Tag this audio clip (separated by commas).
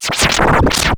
Music, Scratching (performance technique), Musical instrument